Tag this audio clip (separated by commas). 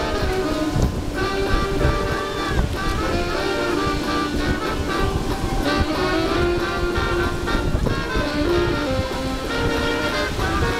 Music, outside, rural or natural